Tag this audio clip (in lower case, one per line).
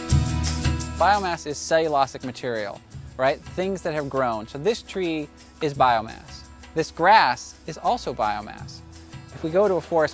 music
speech